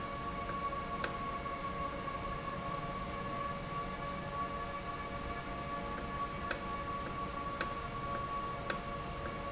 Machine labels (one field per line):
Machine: valve